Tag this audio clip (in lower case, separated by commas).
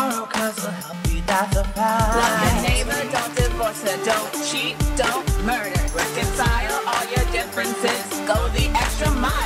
music